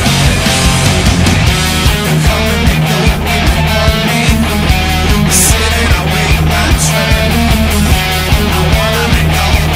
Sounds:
plucked string instrument
guitar
music
musical instrument
electric guitar

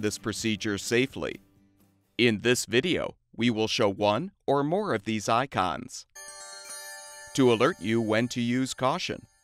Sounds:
speech

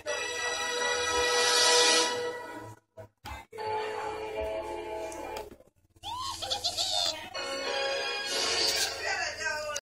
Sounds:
television

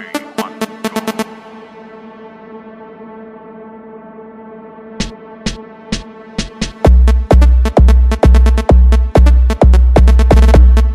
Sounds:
music

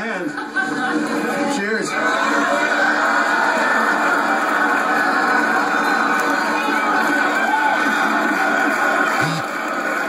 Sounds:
speech

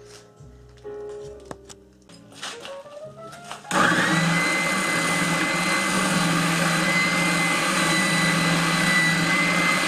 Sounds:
music
blender
inside a small room

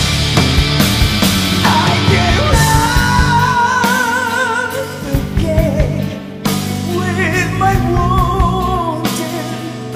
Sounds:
rock and roll
music

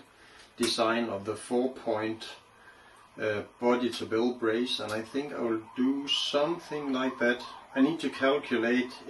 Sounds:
speech

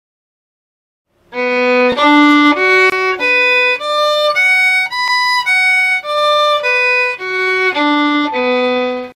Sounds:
musical instrument
violin
music

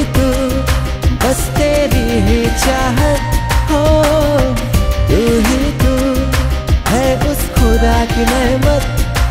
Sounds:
music of bollywood
music

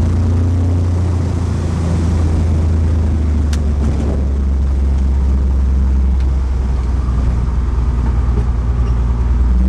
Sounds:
outside, rural or natural
vehicle

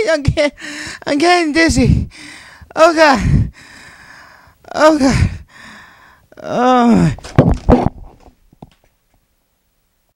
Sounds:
speech

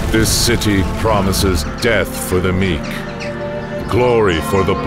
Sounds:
music
speech

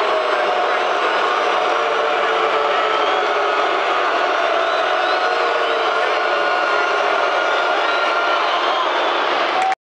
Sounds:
crowd

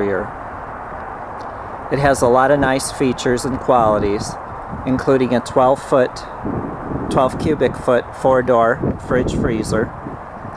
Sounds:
speech

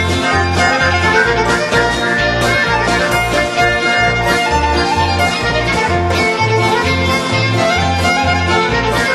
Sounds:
music
tender music

